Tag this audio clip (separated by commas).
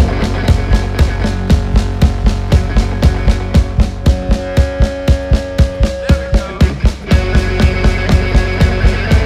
Speech, Music